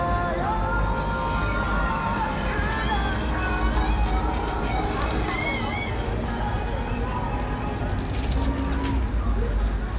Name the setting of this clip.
street